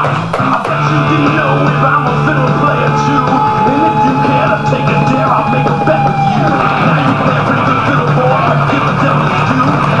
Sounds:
Electric guitar, Music

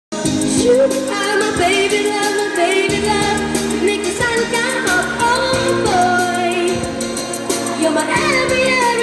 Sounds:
Music, Music of Asia, Singing

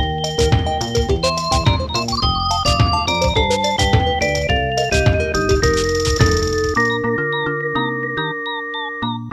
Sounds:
Music, Video game music

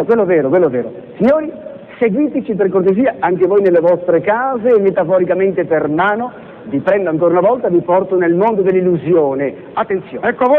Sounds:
Speech

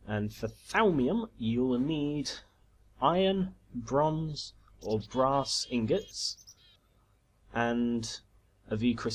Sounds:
Speech

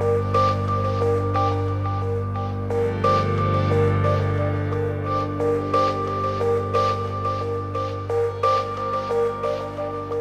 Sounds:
Music

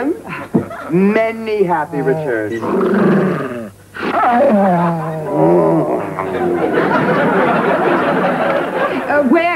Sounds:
Speech, inside a large room or hall

